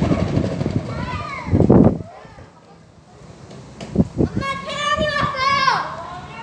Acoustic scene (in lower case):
park